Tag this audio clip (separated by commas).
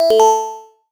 Alarm